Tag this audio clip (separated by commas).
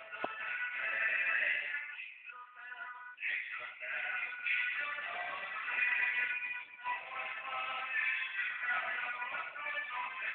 Music, Jingle (music)